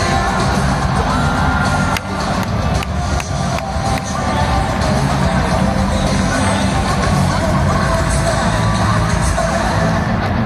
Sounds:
music

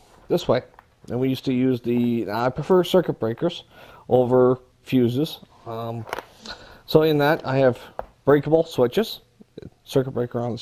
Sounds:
speech

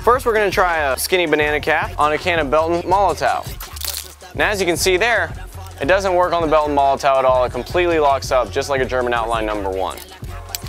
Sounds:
speech
music

